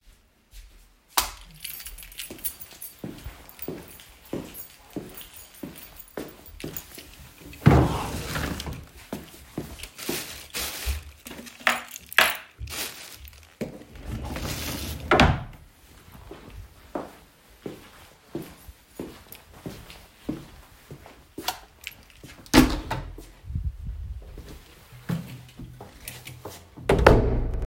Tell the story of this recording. I entered the house turned on the light switch and I walked into the living room. I opened a drawer started looking for something then closed the drawer walked back turned off the light switch opened the door left and closed it.